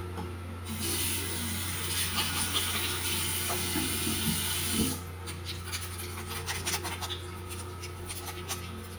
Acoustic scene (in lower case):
restroom